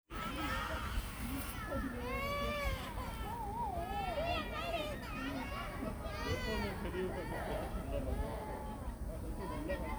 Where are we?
in a park